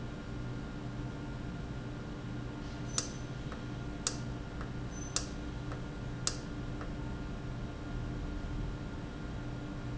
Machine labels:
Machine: valve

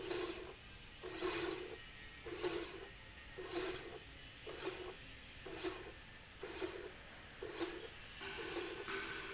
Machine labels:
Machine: slide rail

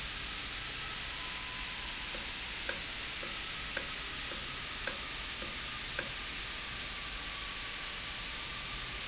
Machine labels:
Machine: valve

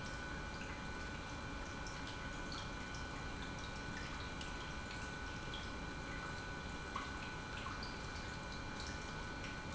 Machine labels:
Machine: pump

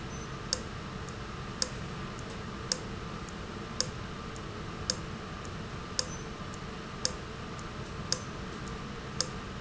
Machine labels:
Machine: valve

